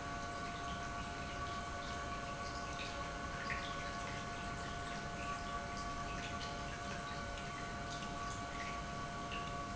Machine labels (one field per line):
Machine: pump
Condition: normal